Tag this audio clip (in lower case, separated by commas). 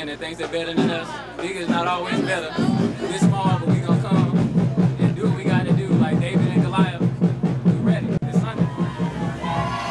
music, speech, roll